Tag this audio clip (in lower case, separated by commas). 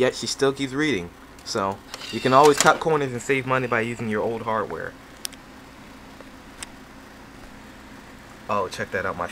speech, inside a small room